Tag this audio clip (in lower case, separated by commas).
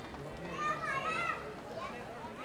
shout, human group actions, human voice